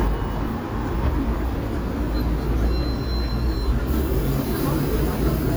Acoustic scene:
residential area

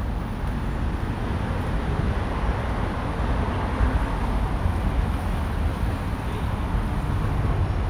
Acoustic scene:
street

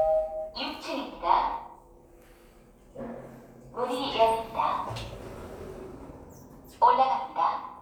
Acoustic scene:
elevator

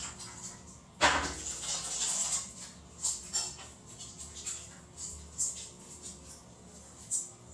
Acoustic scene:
restroom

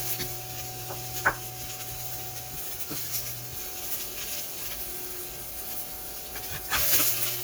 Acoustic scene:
kitchen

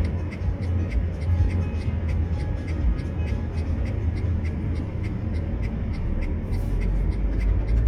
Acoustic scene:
car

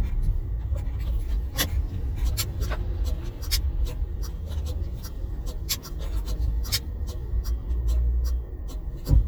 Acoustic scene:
car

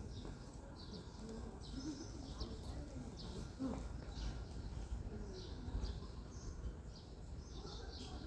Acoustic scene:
residential area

